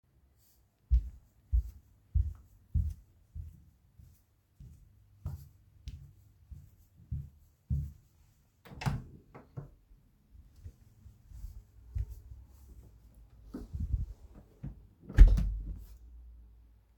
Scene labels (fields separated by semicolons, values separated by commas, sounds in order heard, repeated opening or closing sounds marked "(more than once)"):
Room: hallway; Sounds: footsteps, door (more than once)